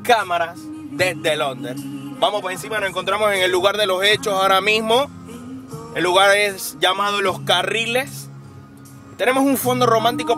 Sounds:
speech
music

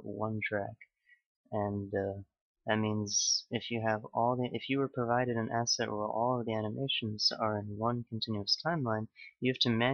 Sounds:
speech

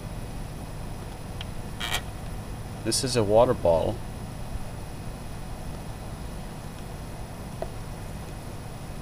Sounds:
speech

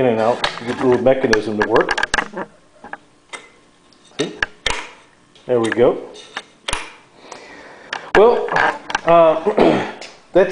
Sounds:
dishes, pots and pans

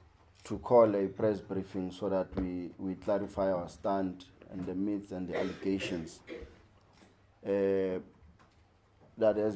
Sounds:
speech

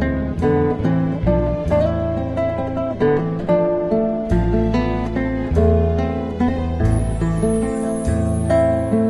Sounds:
musical instrument
music
guitar
acoustic guitar
plucked string instrument

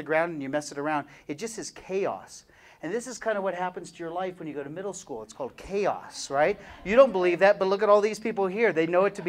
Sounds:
speech

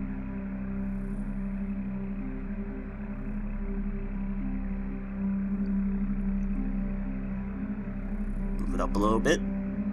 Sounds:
music
speech

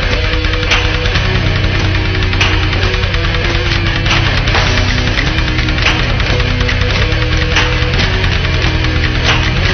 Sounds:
music

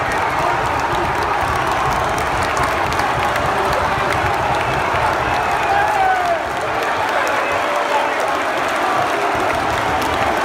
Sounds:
speech

